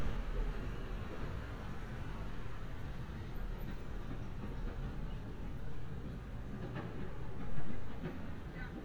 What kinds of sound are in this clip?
unidentified impact machinery